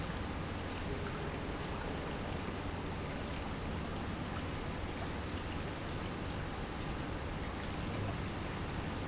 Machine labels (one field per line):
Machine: pump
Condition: normal